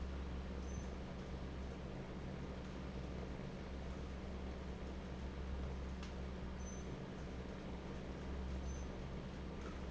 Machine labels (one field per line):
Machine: fan